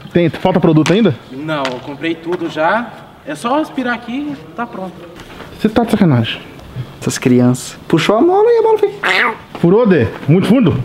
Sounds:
bouncing on trampoline

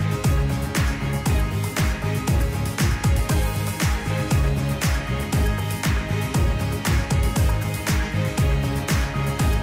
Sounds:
music

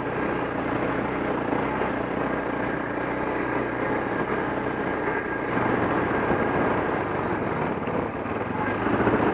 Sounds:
motorcycle
vehicle

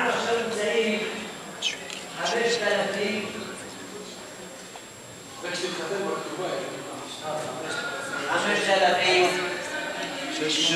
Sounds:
speech
inside a large room or hall

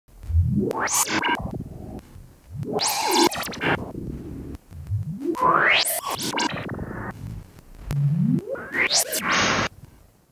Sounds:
electronic music
music
synthesizer

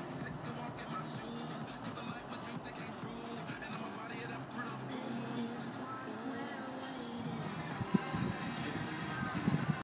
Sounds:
music

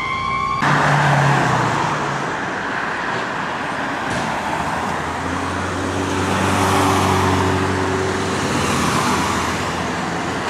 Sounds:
engine
vehicle
accelerating
car
vroom

